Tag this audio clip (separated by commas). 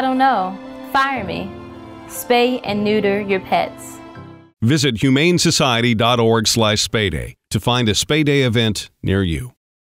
Music, Speech